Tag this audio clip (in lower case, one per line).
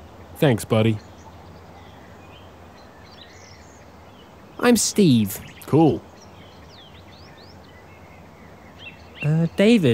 speech